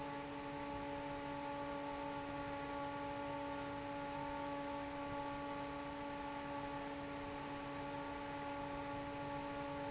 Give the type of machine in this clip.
fan